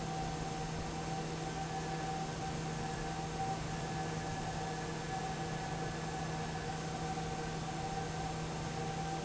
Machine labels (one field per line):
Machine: fan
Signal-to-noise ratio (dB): -6 dB